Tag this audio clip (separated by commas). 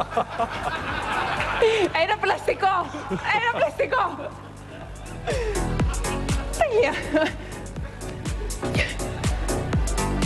Speech